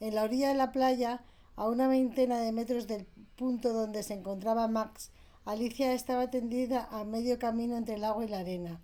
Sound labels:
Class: speech